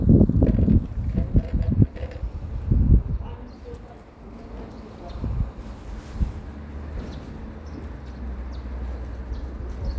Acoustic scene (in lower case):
residential area